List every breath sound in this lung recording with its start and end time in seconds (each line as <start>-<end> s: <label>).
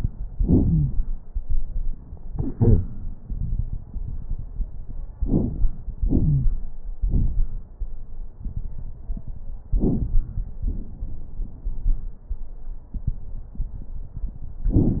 0.58-0.91 s: wheeze
5.23-5.92 s: inhalation
5.23-5.92 s: crackles
6.00-6.58 s: exhalation
6.18-6.50 s: wheeze
9.75-10.61 s: inhalation
9.75-10.61 s: crackles
10.66-12.20 s: exhalation